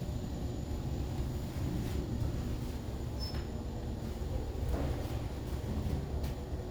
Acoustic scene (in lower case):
elevator